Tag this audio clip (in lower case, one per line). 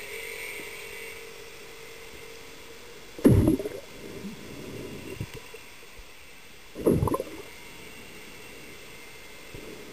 underwater bubbling